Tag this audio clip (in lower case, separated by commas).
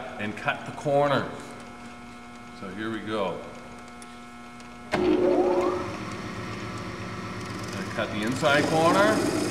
speech